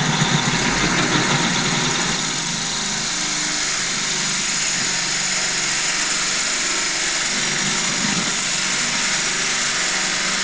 Truck idles before slowly accelerating